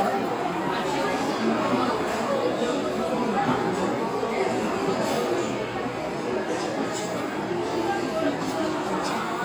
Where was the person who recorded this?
in a restaurant